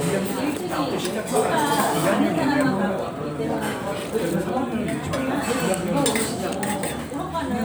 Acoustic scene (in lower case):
restaurant